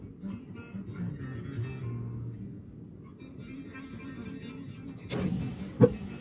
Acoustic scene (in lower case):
car